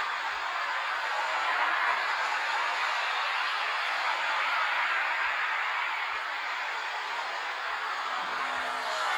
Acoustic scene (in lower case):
street